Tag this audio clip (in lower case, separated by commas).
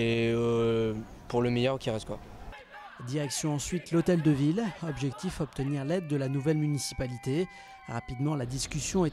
speech